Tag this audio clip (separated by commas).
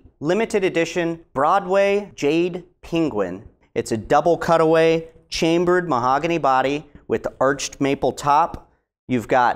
Speech